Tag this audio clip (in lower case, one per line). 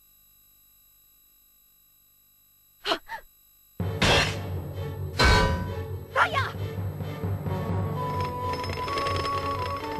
speech
music